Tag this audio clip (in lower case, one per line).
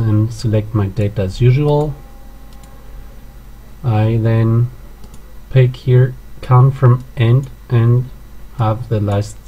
speech